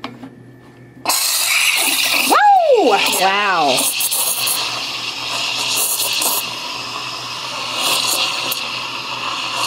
A person is speaking and something is hissing